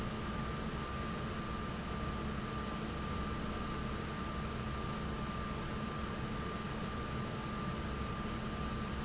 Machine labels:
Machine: fan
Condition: normal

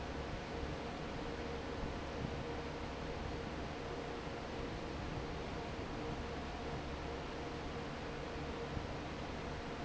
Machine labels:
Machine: fan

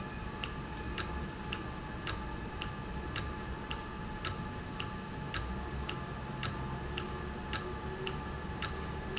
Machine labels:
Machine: valve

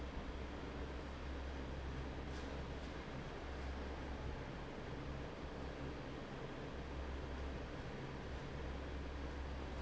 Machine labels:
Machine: fan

